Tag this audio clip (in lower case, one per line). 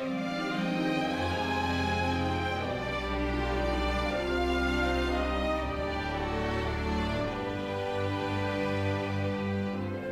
music
theme music